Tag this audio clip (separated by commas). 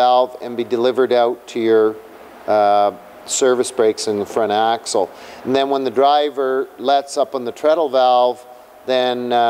Speech